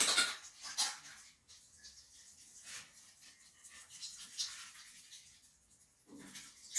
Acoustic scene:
restroom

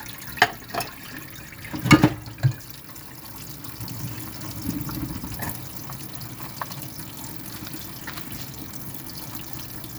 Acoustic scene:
kitchen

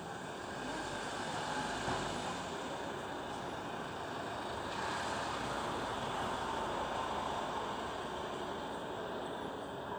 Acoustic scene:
residential area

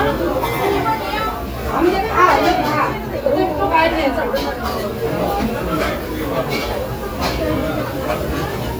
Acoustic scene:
restaurant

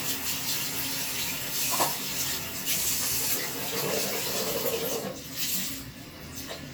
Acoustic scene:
restroom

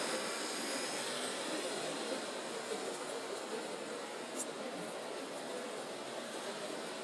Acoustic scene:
residential area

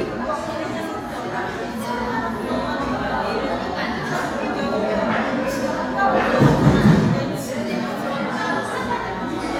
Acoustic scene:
crowded indoor space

